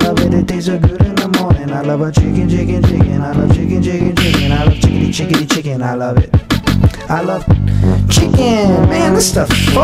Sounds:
Theme music, Music

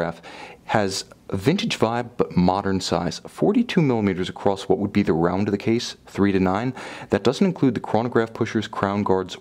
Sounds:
Speech

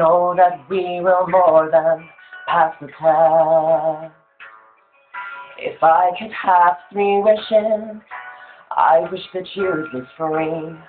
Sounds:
Male singing, Music

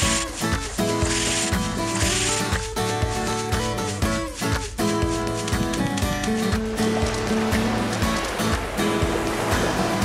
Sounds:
Music

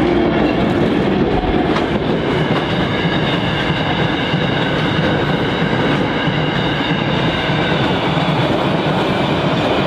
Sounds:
Rail transport, Train, Clickety-clack, Railroad car

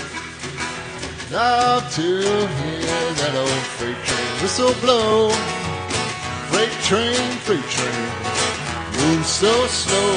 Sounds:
Music

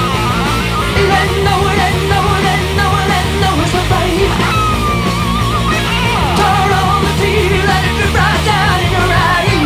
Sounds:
Music, Punk rock

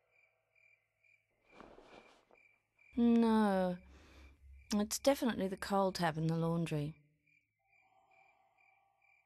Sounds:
Speech

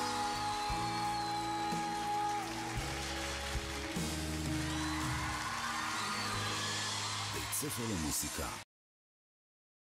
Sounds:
Speech, Music

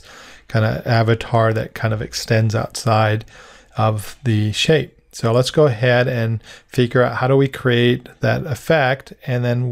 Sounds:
Speech

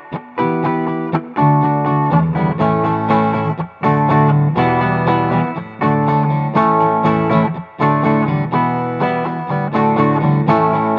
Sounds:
Plucked string instrument, Electric guitar, Musical instrument, Strum, Music, Guitar

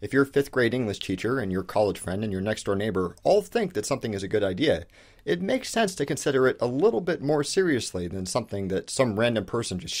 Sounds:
Speech

